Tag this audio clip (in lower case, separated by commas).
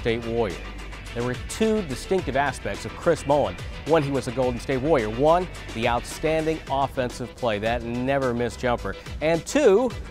music, speech